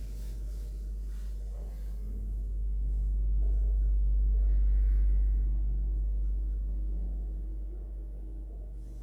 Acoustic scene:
elevator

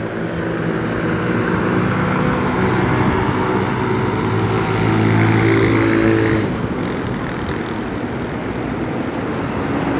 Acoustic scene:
street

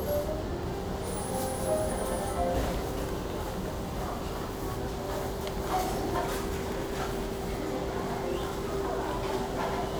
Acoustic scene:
restaurant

